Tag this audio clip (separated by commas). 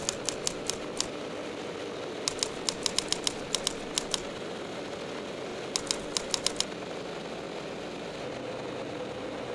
Vehicle, Idling